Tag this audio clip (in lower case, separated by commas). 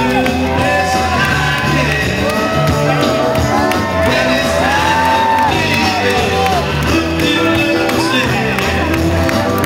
outside, urban or man-made, crowd, music, speech